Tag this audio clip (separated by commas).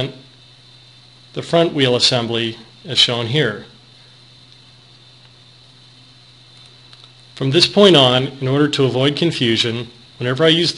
Speech